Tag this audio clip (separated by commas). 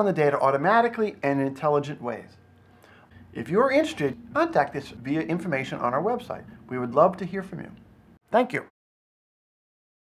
Speech